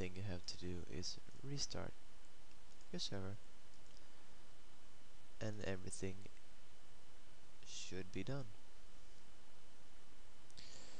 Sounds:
speech

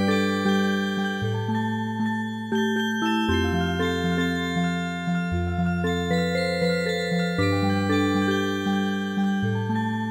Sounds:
music

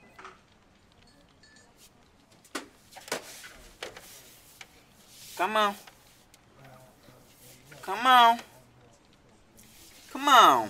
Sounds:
speech

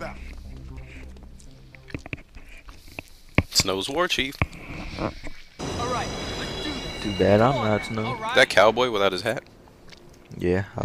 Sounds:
speech
inside a public space
music

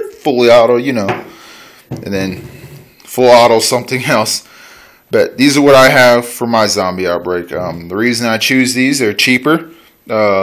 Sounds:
speech
inside a large room or hall

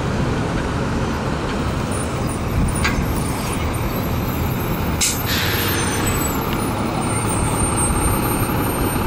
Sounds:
outside, urban or man-made
bus
vehicle

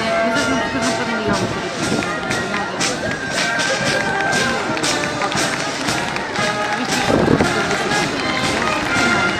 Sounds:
music
speech

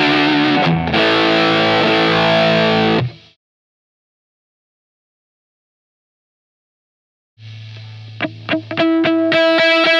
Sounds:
music
guitar
electric guitar
strum
plucked string instrument
bass guitar
musical instrument

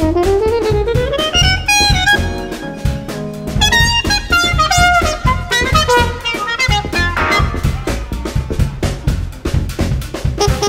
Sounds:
playing trumpet
swing music
musical instrument
music
trumpet
jazz

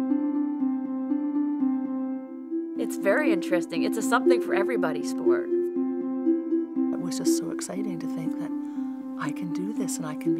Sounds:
music
speech

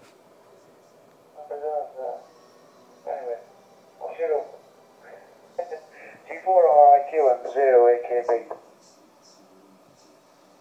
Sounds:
speech

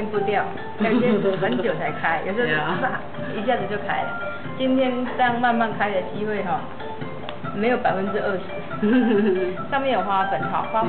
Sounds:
music
speech

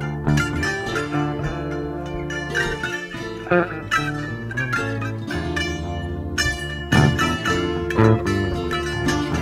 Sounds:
pizzicato
bowed string instrument

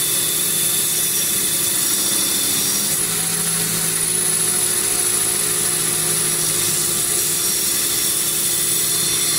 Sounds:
tools

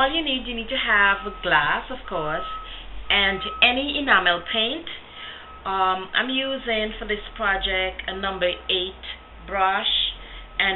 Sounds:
speech

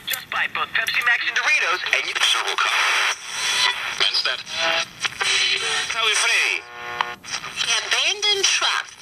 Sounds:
radio
speech
music

